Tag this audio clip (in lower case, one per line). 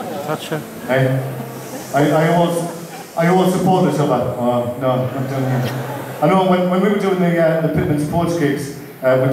speech